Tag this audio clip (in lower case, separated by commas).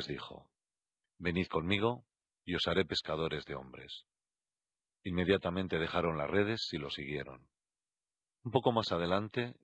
speech